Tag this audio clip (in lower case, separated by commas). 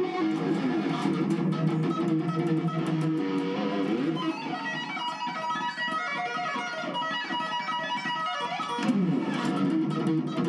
music, tapping (guitar technique), guitar, plucked string instrument, electric guitar, musical instrument